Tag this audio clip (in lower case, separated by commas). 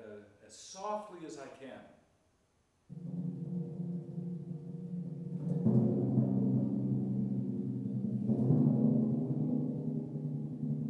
playing timpani